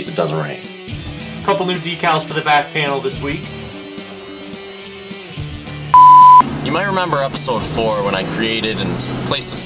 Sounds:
Music, Speech

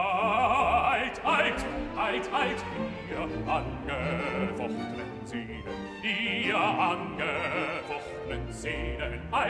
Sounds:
Music

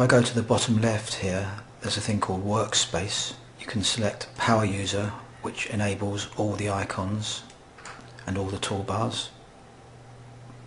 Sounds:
Speech

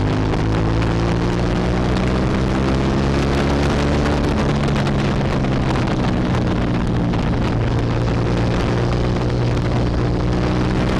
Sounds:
Motorcycle, Vehicle

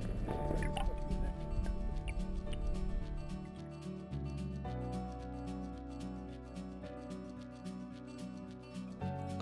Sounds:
Music, Speech

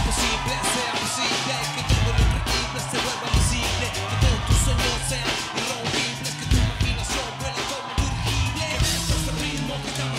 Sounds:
Music, Pop music

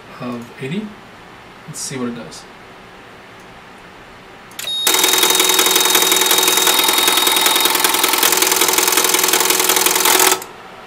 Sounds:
Radio, Speech, inside a small room

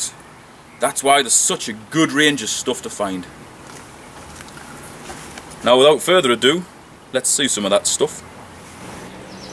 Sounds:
Bird, bird song, Insect, Chirp

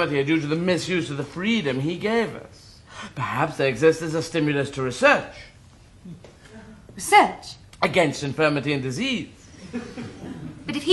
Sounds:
Conversation, Speech

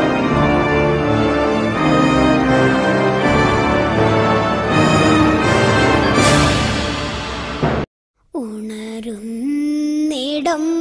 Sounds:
Music

